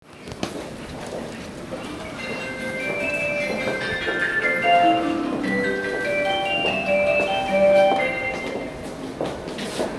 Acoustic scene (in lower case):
subway station